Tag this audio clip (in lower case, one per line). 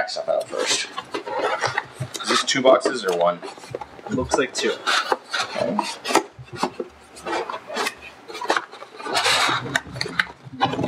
speech